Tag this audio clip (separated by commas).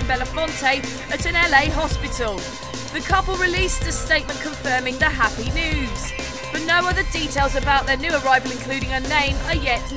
Music, Speech